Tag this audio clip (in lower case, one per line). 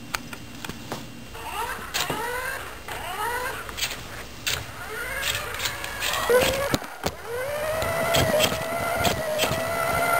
vehicle
motor vehicle (road)